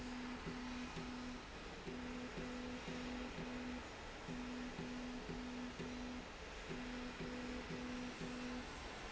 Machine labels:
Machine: slide rail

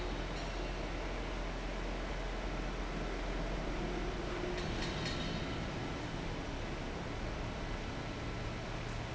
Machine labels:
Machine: fan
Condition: abnormal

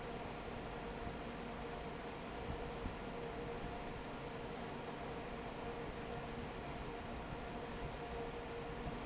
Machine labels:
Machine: fan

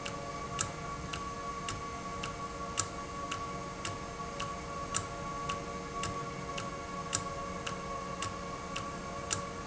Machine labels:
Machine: valve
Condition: normal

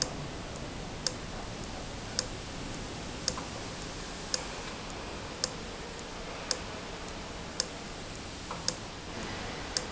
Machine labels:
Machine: valve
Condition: abnormal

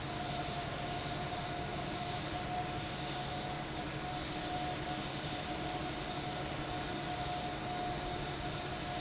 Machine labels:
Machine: fan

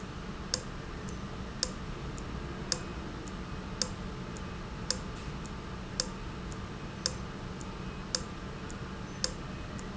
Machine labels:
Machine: valve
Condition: abnormal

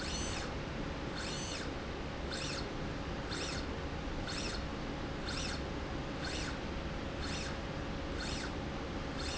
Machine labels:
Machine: slide rail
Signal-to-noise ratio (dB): -6 dB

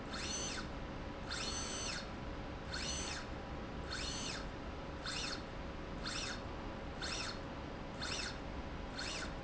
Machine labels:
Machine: slide rail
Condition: normal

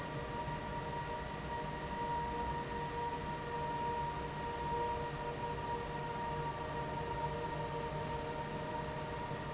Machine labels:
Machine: fan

